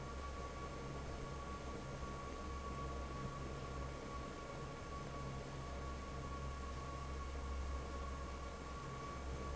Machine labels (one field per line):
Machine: fan